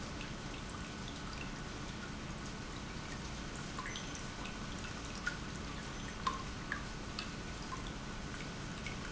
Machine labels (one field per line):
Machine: pump